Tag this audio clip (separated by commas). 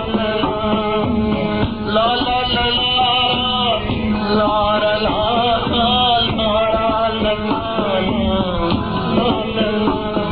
Music